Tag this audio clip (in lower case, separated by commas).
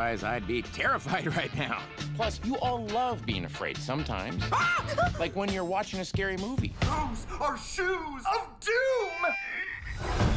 music, speech